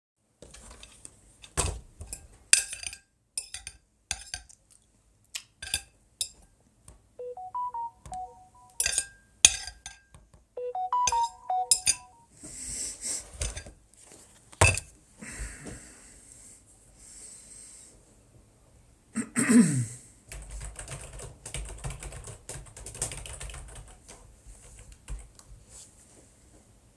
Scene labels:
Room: office; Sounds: cutlery and dishes, phone ringing, keyboard typing

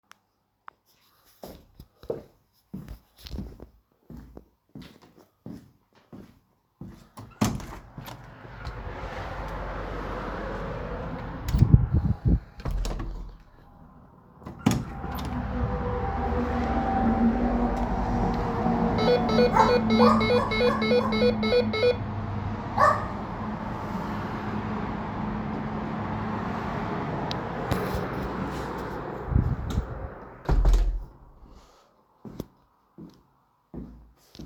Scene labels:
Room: bedroom; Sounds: footsteps, door (more than once), bell ringing

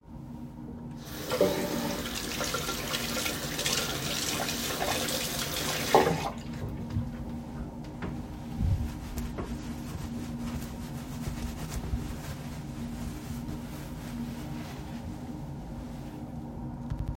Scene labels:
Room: lavatory; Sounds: running water

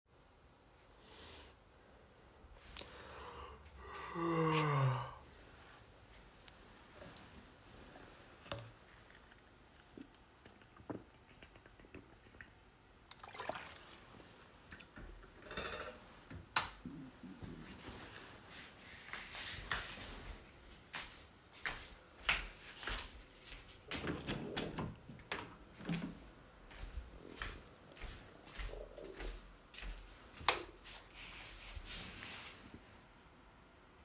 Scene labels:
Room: bedroom; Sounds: light switch, footsteps, window

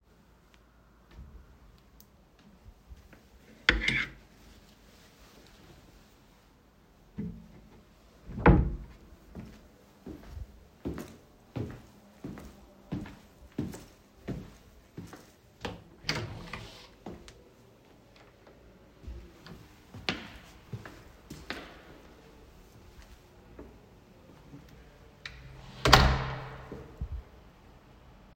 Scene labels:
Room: bedroom, hallway; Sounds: footsteps, wardrobe or drawer, door (more than once)

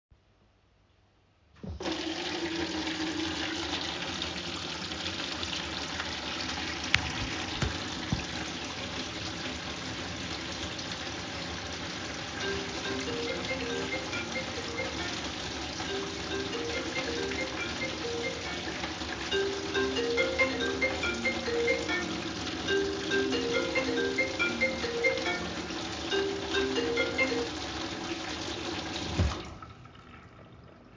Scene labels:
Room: kitchen; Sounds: running water, phone ringing

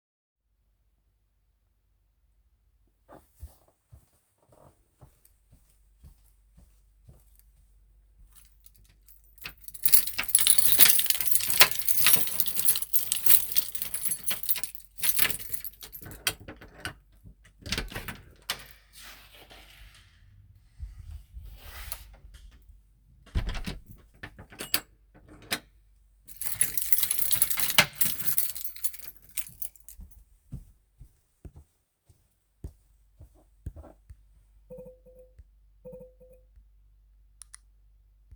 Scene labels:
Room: hallway; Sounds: footsteps, keys, door (more than once)

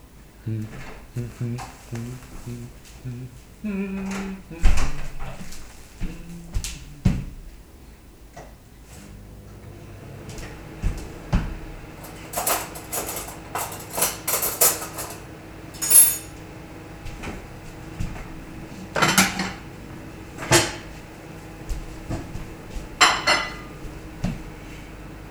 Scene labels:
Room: kitchen; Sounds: window, footsteps, microwave, cutlery and dishes

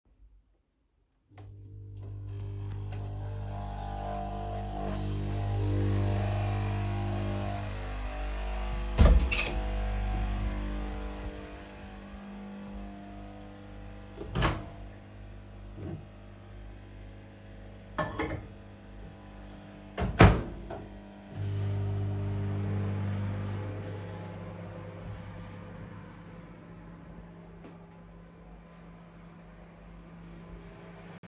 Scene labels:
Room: living room, kitchen; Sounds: coffee machine, door (more than once), microwave, cutlery and dishes

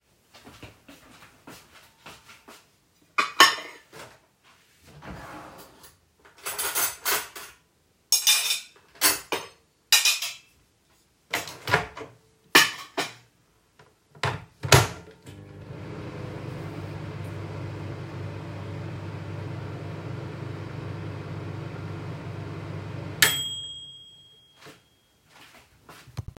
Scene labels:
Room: kitchen; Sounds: footsteps, cutlery and dishes, wardrobe or drawer, microwave

